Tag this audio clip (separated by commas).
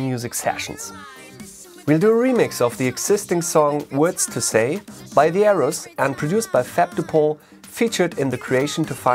Music, Speech